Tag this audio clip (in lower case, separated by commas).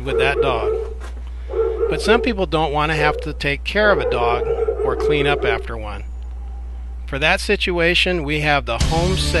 whimper (dog), dog, pets, bow-wow, speech, music, animal